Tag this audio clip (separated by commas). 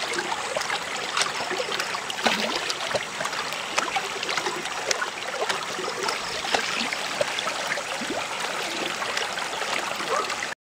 pumping water